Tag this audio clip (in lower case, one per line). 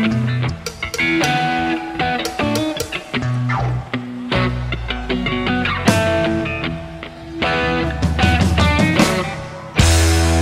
music